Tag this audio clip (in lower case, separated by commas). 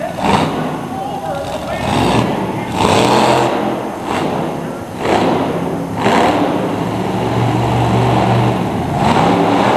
car, truck, speech, vehicle